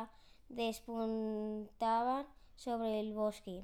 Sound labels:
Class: speech